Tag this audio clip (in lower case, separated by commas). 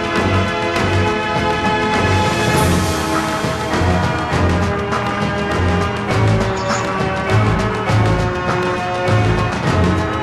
music, video game music, exciting music